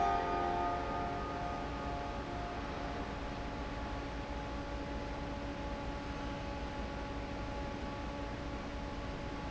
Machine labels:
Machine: fan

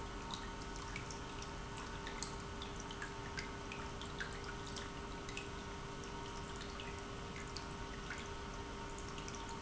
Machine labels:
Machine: pump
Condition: normal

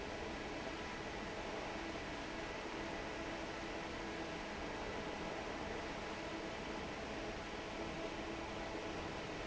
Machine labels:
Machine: fan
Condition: normal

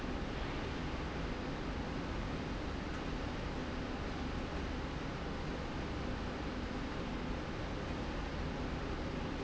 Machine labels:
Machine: slide rail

